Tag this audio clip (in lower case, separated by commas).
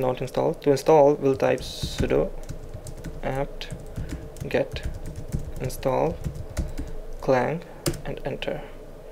computer keyboard, speech, typing